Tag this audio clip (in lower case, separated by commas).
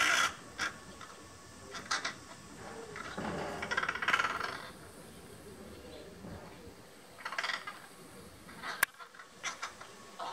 bird